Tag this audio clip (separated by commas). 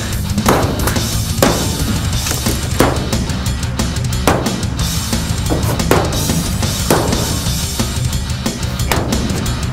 Music